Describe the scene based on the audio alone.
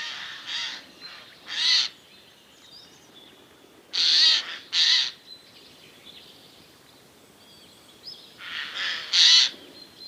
Birds chirping and squeaking